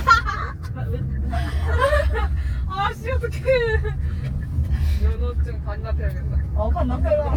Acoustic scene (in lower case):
car